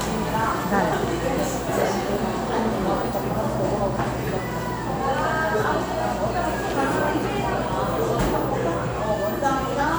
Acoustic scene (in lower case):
cafe